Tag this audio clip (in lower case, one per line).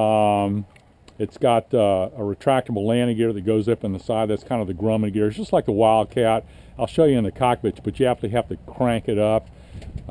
speech